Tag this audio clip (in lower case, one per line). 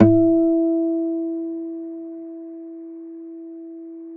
acoustic guitar
music
guitar
musical instrument
plucked string instrument